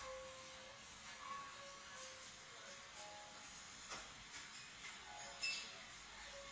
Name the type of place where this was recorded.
cafe